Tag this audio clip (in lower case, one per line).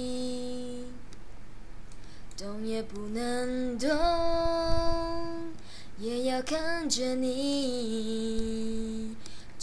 female singing